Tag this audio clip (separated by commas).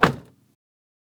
Vehicle